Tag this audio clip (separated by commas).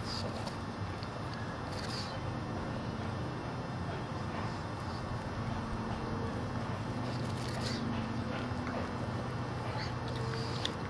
Animal